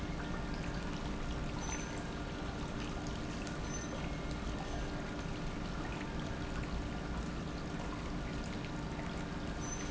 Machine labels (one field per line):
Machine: pump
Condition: normal